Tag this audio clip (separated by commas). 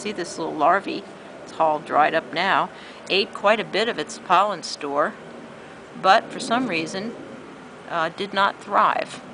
Speech